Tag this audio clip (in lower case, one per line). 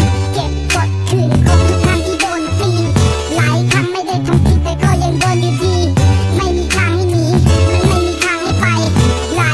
music